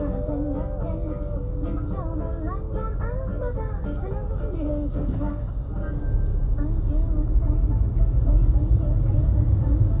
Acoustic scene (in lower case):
car